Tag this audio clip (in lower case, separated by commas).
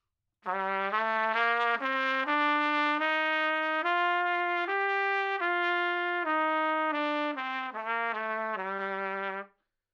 music, trumpet, musical instrument, brass instrument